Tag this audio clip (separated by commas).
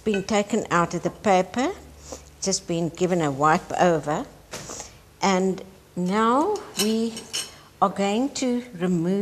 Speech